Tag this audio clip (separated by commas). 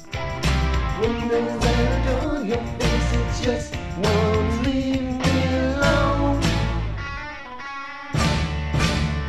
Rock music, Music, Psychedelic rock